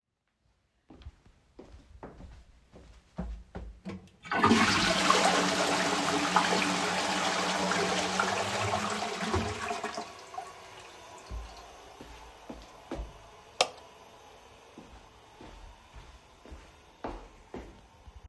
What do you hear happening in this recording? I flushed the toilet. Than I walked to the light switch and turned off the light. After that I left the toilet and walked away.